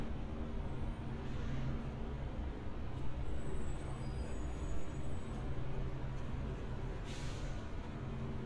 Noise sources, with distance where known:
engine of unclear size, far

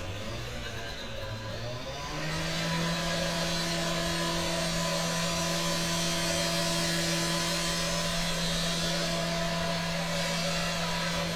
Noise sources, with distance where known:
engine of unclear size

